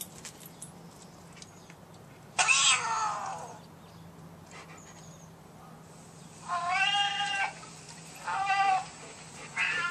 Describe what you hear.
Metal clangs and a cat is meowing